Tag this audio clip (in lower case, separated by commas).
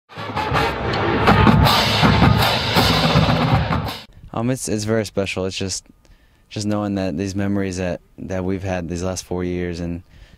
music, speech